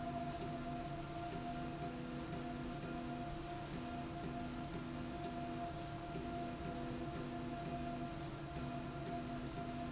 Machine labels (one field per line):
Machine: slide rail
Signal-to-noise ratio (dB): 0 dB